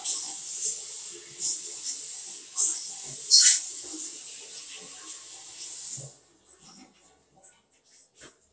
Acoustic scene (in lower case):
restroom